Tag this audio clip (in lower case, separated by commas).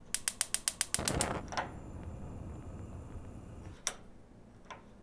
fire